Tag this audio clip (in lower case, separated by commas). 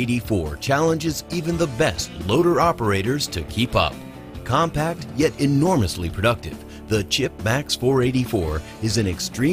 speech, music